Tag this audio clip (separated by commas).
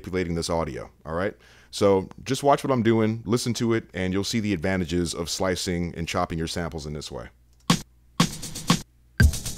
Speech, Drum machine, Music